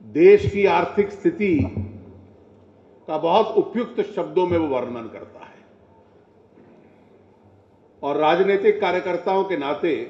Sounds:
man speaking
monologue
speech

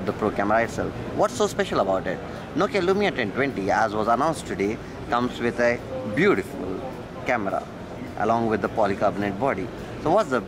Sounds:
speech

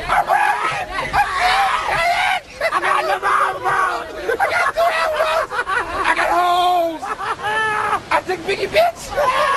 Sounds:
speech

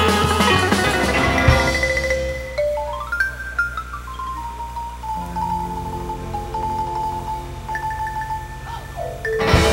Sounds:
music

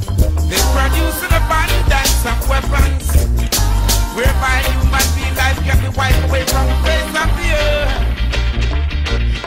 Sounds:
music
reggae

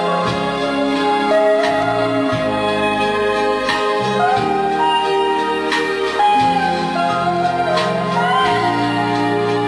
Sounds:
jazz
music

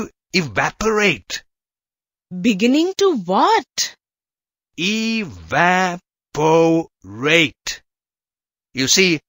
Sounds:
speech synthesizer

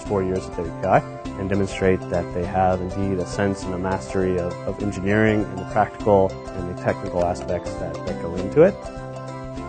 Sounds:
music
speech

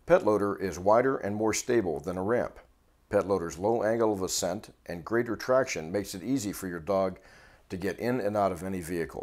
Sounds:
speech

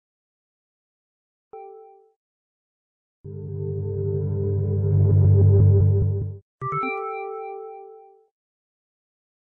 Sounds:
music

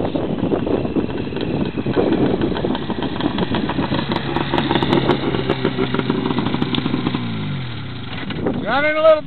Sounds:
vehicle
speech
outside, rural or natural

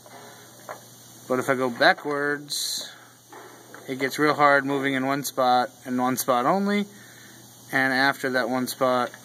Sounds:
speech

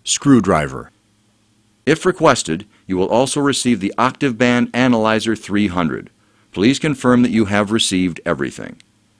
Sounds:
speech

